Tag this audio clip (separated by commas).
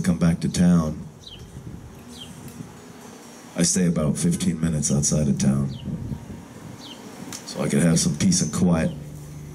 Speech